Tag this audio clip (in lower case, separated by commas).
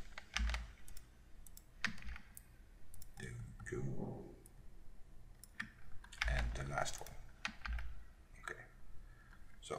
clicking, speech